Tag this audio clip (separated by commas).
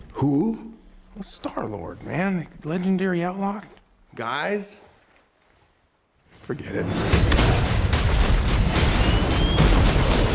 Speech